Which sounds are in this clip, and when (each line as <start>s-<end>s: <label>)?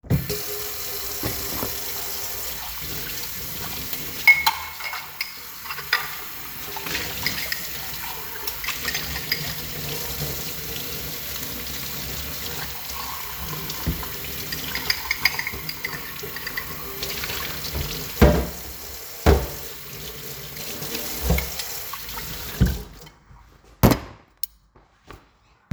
0.0s-25.7s: running water
3.9s-9.6s: cutlery and dishes
14.7s-16.7s: cutlery and dishes
18.1s-19.7s: cutlery and dishes
20.7s-25.4s: cutlery and dishes